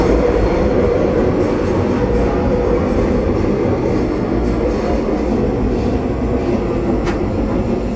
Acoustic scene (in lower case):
subway train